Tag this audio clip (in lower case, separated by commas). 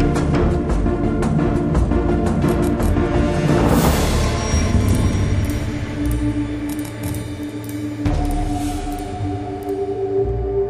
music